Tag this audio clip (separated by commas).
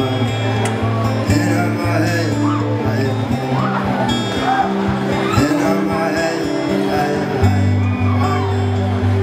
Speech, Music